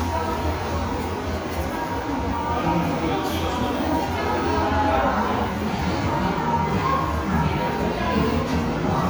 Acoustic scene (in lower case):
crowded indoor space